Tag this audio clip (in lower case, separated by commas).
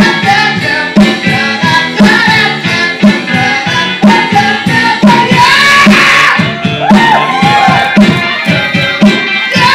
musical instrument, guitar, music